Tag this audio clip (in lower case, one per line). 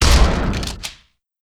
explosion
gunshot